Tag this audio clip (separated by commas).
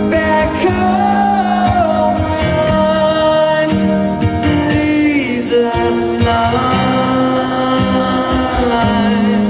Singing, inside a large room or hall, Music